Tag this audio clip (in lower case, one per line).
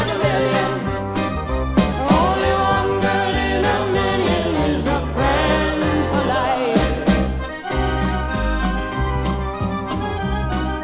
music
inside a large room or hall
singing